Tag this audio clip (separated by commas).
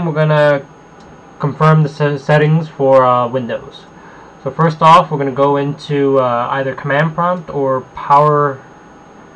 Speech